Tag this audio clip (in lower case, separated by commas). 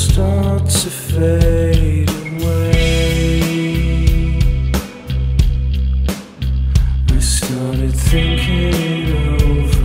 new-age music, music